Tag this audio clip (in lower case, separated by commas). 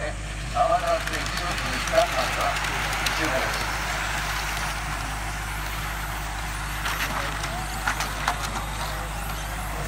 speech